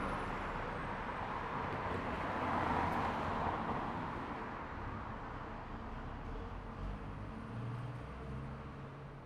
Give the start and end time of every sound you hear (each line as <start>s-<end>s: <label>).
0.0s-1.4s: truck
0.0s-1.4s: truck brakes
0.0s-9.3s: car
0.0s-9.3s: car wheels rolling
5.7s-9.3s: car engine accelerating